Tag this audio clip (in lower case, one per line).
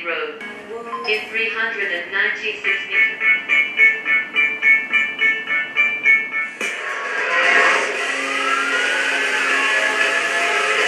music
speech